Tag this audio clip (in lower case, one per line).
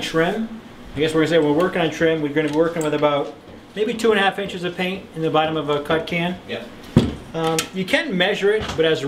speech